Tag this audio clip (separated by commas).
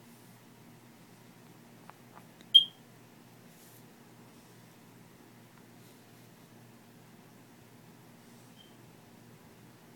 inside a small room